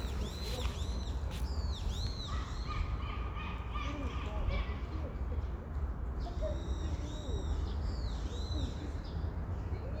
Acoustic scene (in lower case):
park